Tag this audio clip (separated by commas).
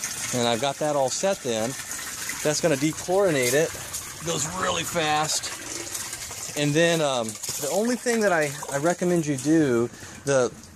Water tap, Water